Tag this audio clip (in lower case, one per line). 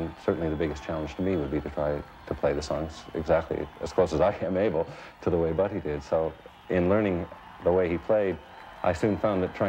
speech